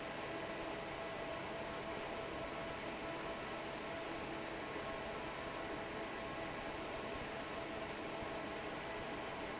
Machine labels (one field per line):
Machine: fan